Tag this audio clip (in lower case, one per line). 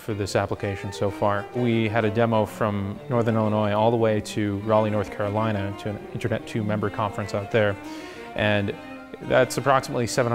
music
speech